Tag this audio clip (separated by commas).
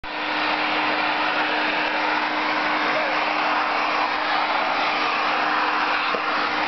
Vacuum cleaner